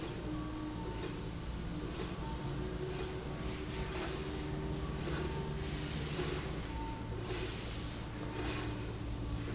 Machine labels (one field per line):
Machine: slide rail